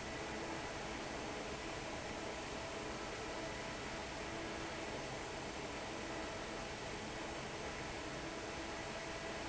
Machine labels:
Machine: fan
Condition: normal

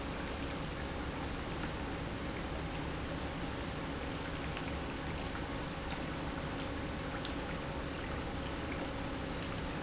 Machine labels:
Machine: pump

